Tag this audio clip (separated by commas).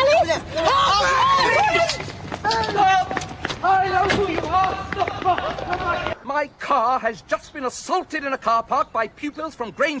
Speech